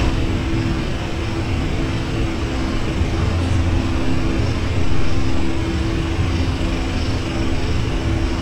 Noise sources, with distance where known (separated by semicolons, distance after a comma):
unidentified impact machinery, near